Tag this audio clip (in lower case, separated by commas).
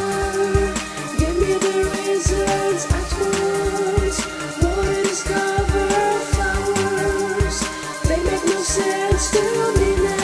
music